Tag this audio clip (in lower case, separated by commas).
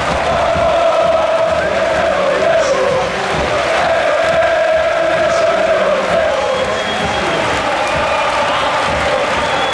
cheering, people cheering